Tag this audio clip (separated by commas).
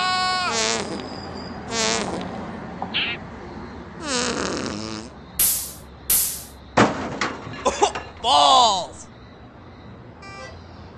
Speech